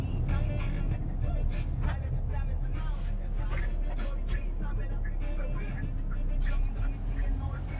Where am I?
in a car